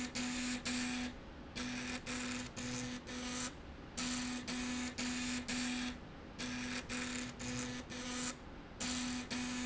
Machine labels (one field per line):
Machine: slide rail